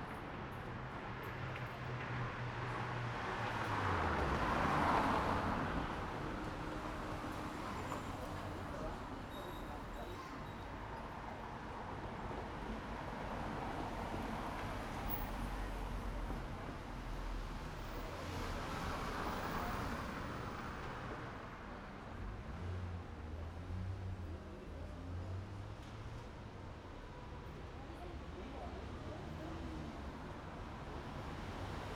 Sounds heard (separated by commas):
car engine accelerating, car wheels rolling, car, people talking, music